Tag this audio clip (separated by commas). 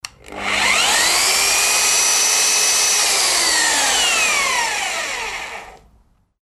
Engine